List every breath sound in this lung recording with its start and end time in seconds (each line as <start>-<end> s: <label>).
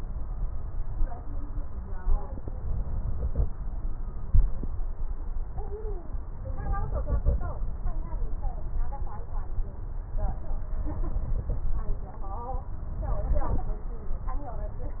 No breath sounds were labelled in this clip.